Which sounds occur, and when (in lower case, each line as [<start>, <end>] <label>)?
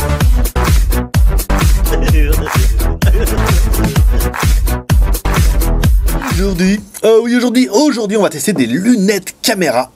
[0.00, 6.88] music
[1.86, 4.00] laughter
[6.17, 6.77] male speech
[6.63, 9.95] background noise
[6.97, 9.86] male speech